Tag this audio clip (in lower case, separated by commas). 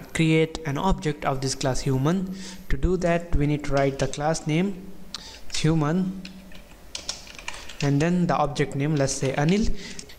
speech, typing, computer keyboard